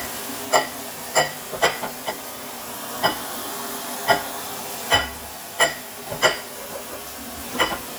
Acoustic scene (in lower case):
kitchen